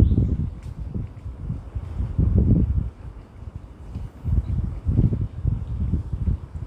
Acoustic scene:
residential area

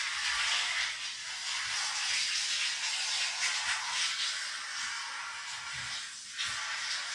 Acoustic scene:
restroom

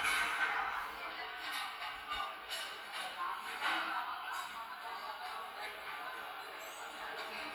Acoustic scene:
crowded indoor space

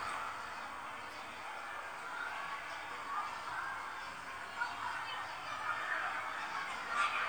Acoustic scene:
residential area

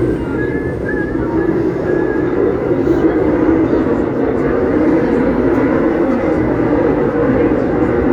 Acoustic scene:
subway train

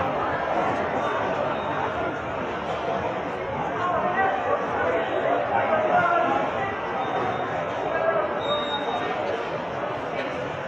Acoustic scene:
subway station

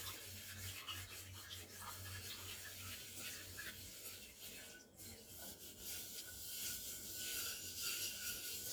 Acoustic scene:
kitchen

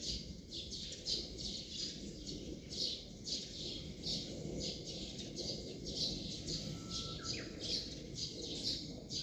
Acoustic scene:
park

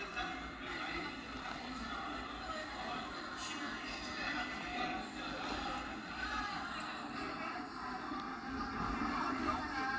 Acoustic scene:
cafe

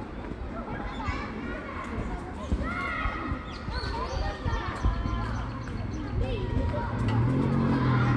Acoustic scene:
park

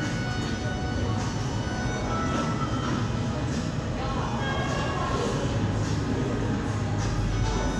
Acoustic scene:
cafe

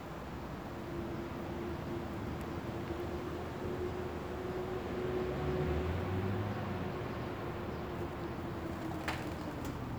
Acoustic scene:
residential area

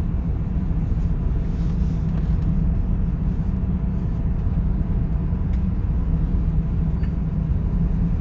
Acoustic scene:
car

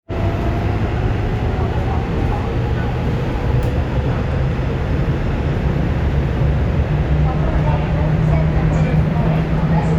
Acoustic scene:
subway train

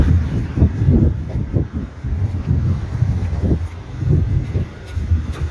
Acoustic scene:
residential area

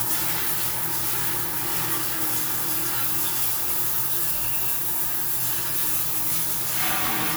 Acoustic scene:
restroom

